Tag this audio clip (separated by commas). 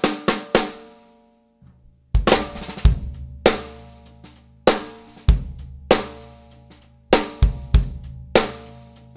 Cymbal, Hi-hat